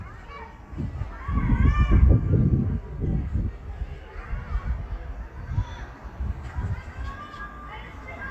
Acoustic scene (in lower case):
park